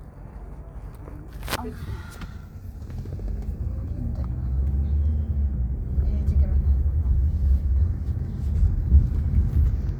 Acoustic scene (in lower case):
car